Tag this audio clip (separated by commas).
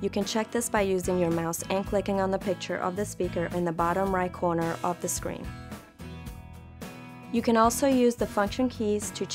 Music, Speech